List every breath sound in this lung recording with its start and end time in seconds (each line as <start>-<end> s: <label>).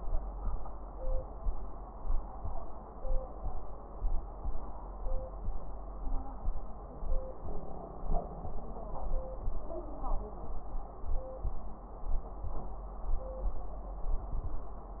5.99-6.39 s: wheeze